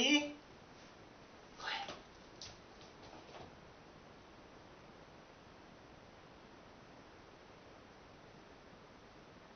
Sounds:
speech

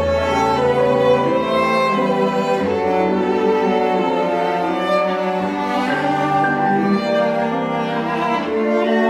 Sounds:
musical instrument, cello, bowed string instrument, fiddle, piano, music, classical music, orchestra

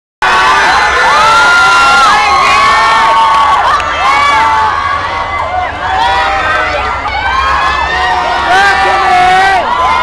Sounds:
speech, outside, urban or man-made

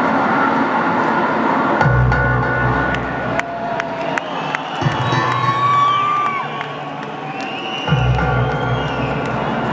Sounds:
music, echo

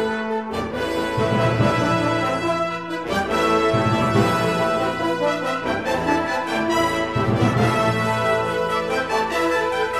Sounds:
music, orchestra

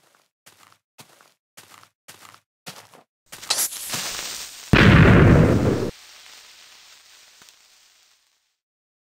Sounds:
explosion

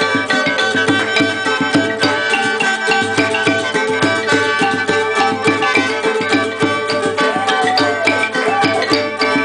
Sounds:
music, folk music

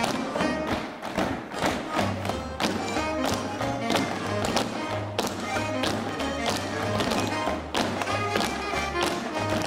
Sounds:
tap dancing

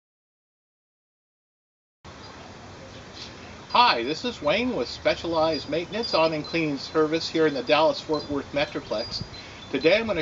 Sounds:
speech, clink

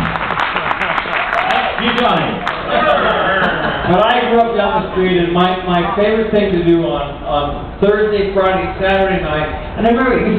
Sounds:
speech

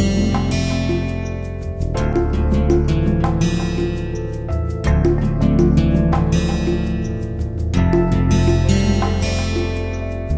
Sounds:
music

